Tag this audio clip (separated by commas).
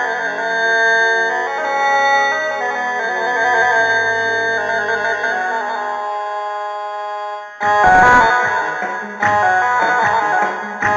Sampler, Music